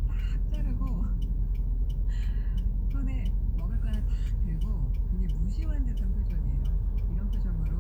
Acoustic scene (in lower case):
car